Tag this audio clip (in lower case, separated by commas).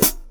cymbal, percussion, music, musical instrument, hi-hat